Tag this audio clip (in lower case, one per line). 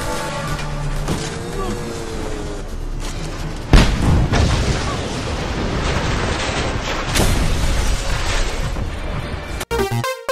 explosion
music
motorcycle